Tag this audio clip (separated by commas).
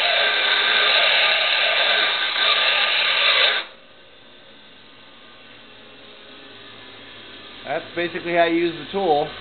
electric grinder grinding